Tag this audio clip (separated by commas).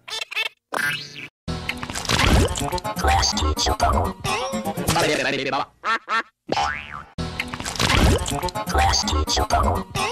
Music